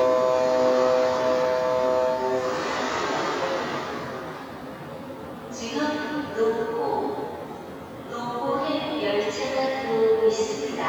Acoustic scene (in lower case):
subway station